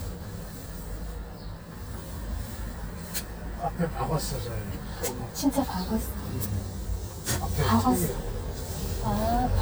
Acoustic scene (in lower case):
car